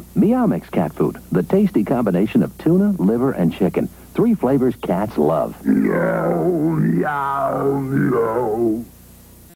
A man speaks then a low meow